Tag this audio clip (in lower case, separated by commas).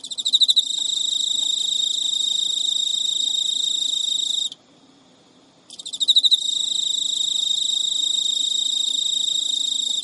bird